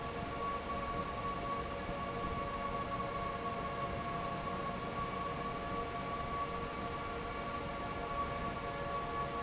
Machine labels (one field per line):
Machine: fan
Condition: normal